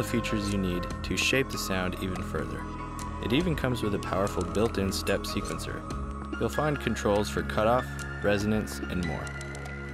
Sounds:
speech, music, drip

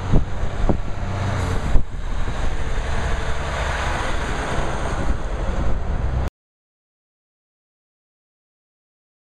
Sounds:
vehicle, truck

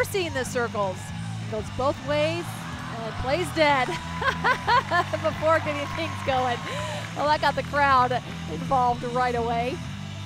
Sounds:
music, speech

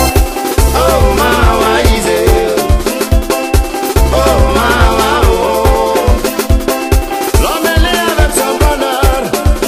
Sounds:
music

